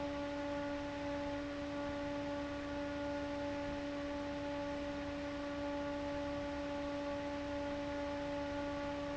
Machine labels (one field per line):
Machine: fan